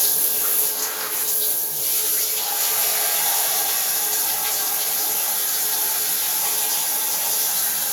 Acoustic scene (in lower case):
restroom